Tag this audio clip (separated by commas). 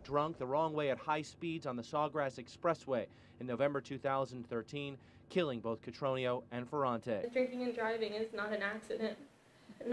Speech